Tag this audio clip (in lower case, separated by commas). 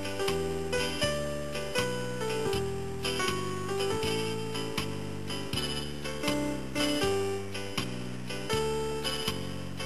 music